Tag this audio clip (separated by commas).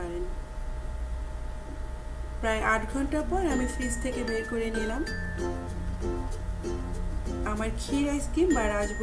ice cream truck